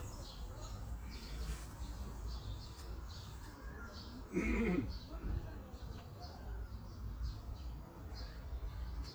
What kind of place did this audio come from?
park